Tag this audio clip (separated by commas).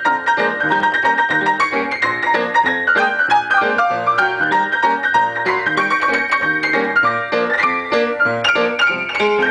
Music